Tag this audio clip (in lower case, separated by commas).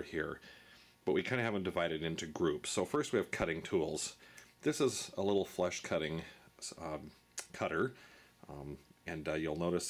speech